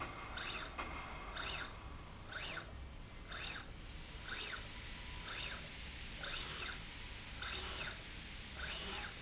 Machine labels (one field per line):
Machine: slide rail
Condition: normal